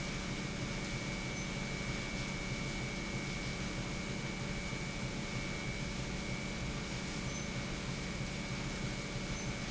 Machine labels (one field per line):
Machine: pump